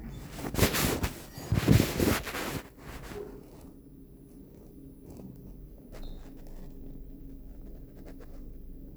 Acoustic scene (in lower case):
elevator